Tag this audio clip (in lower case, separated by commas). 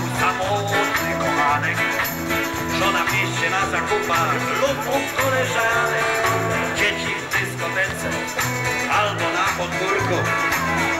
music